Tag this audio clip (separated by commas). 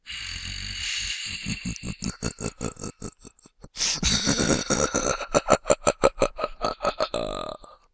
Human voice, Laughter